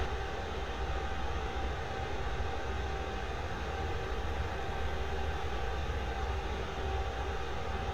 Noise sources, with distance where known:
engine of unclear size, near

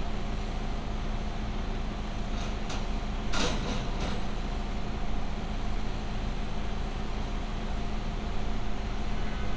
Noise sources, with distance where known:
engine of unclear size

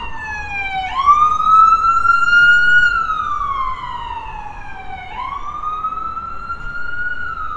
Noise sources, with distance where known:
siren, near

